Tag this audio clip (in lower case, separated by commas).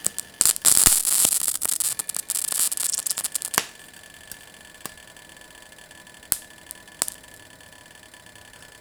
frying (food), home sounds